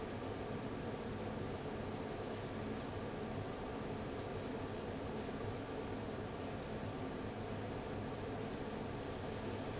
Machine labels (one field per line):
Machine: fan